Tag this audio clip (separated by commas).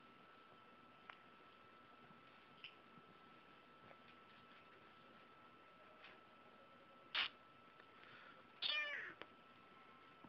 Domestic animals, Animal